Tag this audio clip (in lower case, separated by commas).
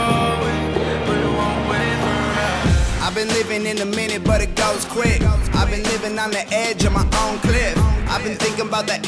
music